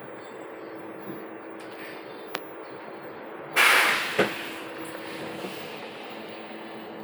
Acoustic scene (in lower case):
bus